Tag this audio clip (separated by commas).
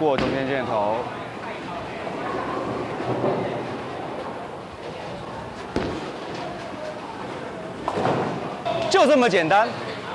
bowling impact